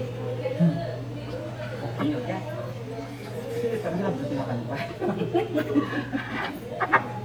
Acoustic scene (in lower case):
restaurant